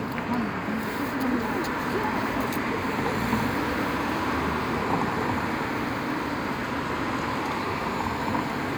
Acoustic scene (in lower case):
street